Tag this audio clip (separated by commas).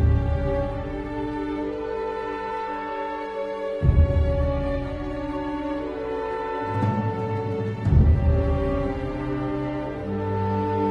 Music